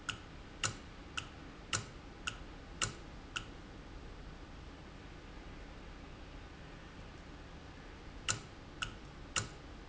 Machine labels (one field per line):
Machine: valve